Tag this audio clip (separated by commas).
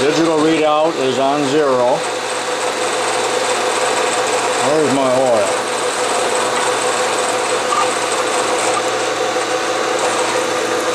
Power tool, Drill, Speech, Tools